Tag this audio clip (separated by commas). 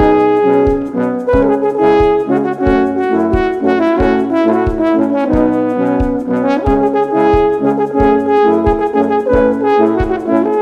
playing french horn